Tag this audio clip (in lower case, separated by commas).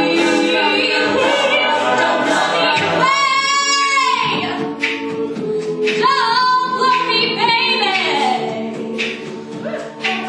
female singing, music